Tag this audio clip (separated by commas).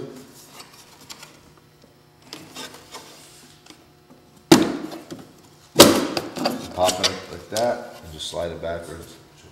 Speech